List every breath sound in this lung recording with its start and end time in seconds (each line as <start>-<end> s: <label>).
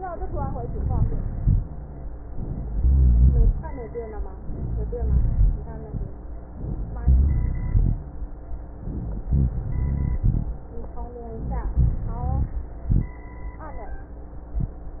0.19-1.04 s: inhalation
1.04-1.63 s: exhalation
1.04-1.63 s: rhonchi
2.13-2.68 s: inhalation
2.66-3.53 s: rhonchi
2.75-3.62 s: exhalation
4.40-4.95 s: inhalation
4.48-4.93 s: rhonchi
4.99-5.66 s: exhalation
4.99-5.66 s: rhonchi
6.58-7.04 s: inhalation
6.58-7.04 s: rhonchi
7.08-8.03 s: exhalation
7.08-8.03 s: rhonchi
8.80-9.36 s: inhalation
8.80-9.36 s: rhonchi
9.41-10.49 s: exhalation
9.41-10.49 s: rhonchi
11.37-11.73 s: rhonchi
11.37-11.77 s: inhalation
11.76-12.58 s: exhalation
11.76-12.58 s: rhonchi